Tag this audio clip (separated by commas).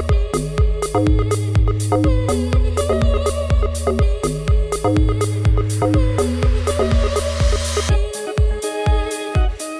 Music